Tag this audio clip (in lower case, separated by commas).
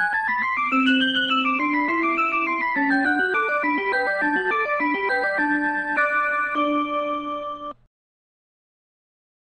music